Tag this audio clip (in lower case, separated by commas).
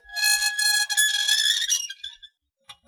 squeak